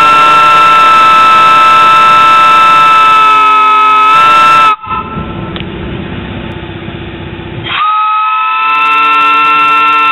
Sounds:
Steam whistle

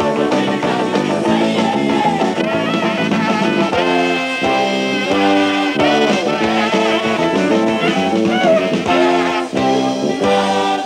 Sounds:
Blues, Singing, Music

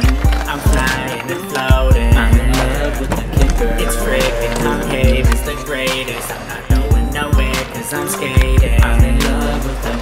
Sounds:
Skateboard, Music

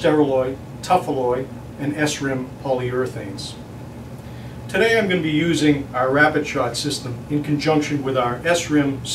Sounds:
Speech

